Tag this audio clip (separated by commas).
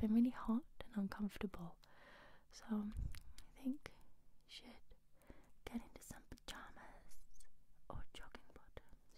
Speech